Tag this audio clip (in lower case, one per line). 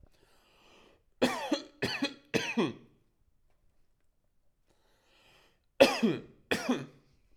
cough
respiratory sounds